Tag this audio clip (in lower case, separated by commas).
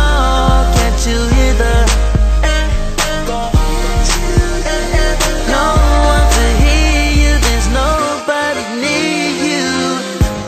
music